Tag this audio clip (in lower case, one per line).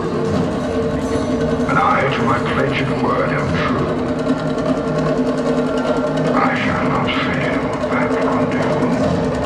music
speech